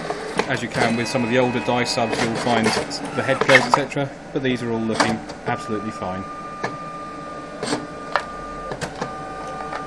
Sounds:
Speech

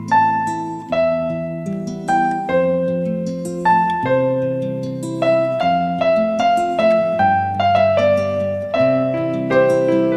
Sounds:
Music

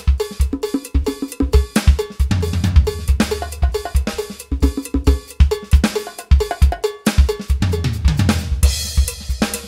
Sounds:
Snare drum, Bass drum, playing drum kit, Drum, Percussion, Rimshot, Drum kit, Drum roll

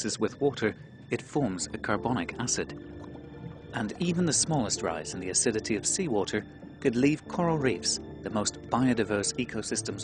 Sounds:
Music, Speech

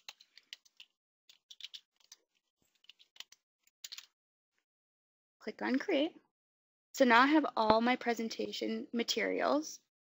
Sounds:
inside a small room, Speech

